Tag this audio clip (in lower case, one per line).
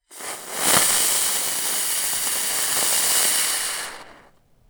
hiss